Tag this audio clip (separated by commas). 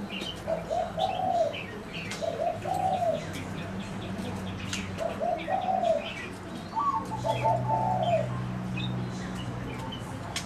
outside, urban or man-made, Pigeon, Speech